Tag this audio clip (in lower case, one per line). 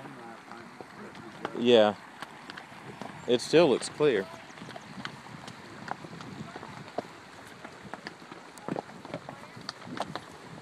speech
horse
animal
outside, rural or natural